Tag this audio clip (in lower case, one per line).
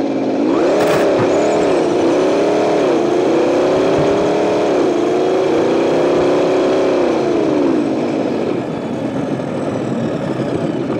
race car